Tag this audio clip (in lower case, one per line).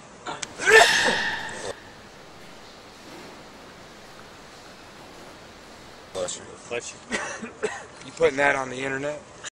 people sneezing
speech
sneeze